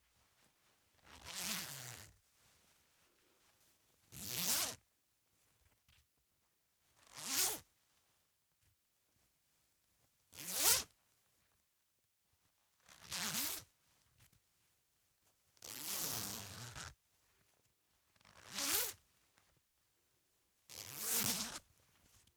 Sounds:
home sounds, Zipper (clothing)

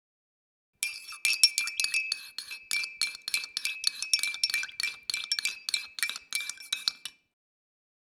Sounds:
Cutlery, home sounds

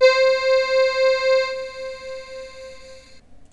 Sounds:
Musical instrument, Keyboard (musical), Music

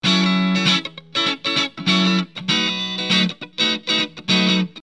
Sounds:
Musical instrument, Guitar, Plucked string instrument, Music

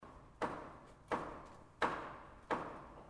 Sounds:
Tools, Hammer

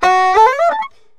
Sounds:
Music, woodwind instrument, Musical instrument

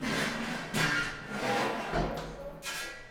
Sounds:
Drawer open or close, home sounds

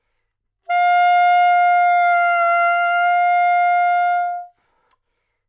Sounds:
Wind instrument, Musical instrument, Music

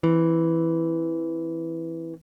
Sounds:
Electric guitar, Music, Musical instrument, Plucked string instrument, Guitar

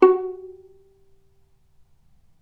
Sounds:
Musical instrument, Music, Bowed string instrument

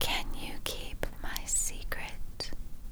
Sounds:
Human voice, Whispering

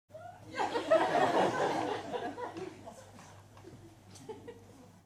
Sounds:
Human voice, Crowd, Human group actions, Laughter

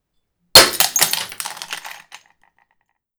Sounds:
Shatter, Glass

